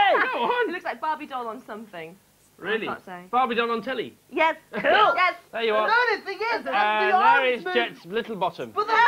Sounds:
speech

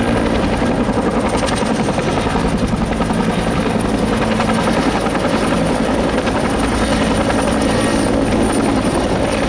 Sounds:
vehicle
speech
helicopter

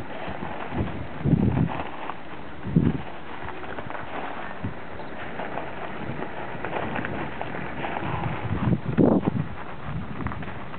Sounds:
speech

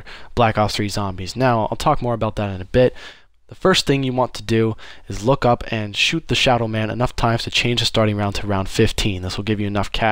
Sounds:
speech

